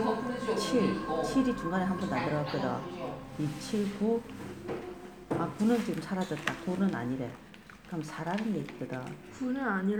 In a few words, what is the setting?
crowded indoor space